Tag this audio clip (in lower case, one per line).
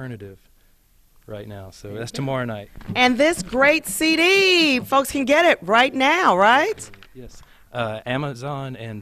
speech